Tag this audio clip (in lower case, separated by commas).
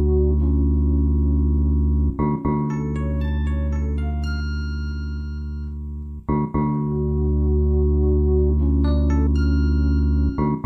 marimba, mallet percussion, keyboard (musical), piano, electric piano, glockenspiel